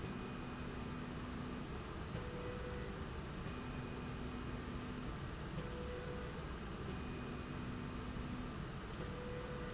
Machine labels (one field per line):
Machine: slide rail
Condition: normal